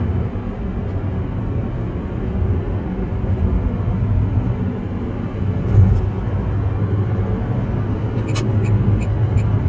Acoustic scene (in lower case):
car